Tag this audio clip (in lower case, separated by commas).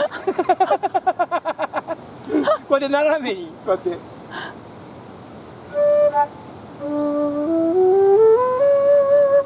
speech, music, wind instrument, flute